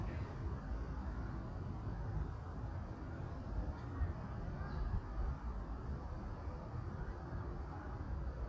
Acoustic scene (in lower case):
residential area